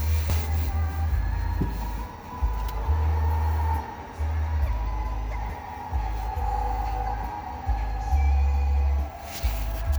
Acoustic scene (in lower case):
car